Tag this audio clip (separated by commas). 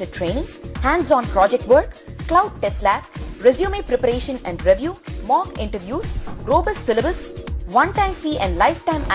Music, Speech